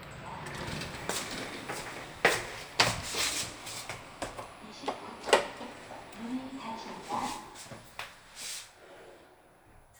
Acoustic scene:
elevator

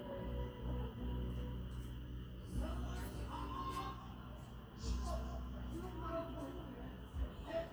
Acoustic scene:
park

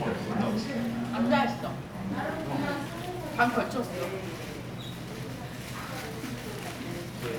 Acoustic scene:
crowded indoor space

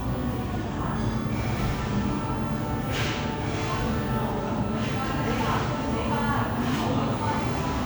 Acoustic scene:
crowded indoor space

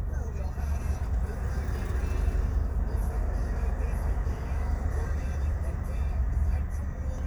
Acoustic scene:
car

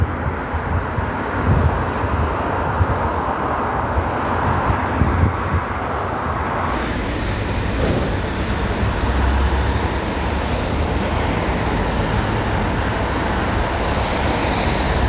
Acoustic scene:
street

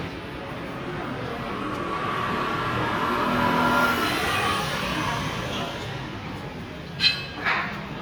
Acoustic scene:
residential area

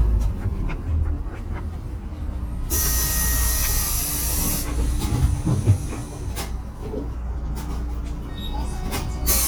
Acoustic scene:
bus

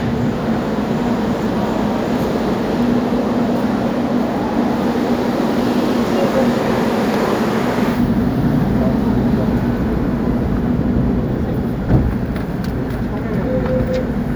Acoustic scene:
subway station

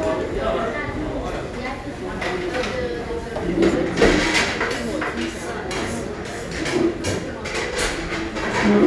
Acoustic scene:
crowded indoor space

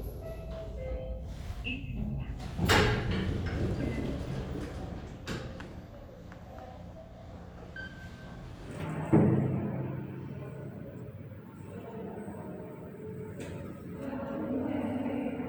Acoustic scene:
elevator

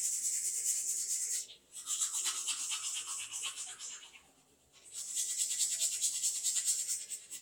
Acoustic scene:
restroom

